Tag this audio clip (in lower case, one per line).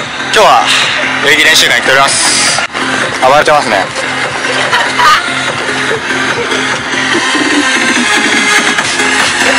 people shuffling